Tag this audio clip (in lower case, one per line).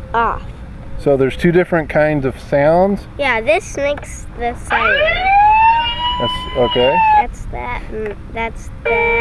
ambulance (siren)
speech
emergency vehicle
outside, rural or natural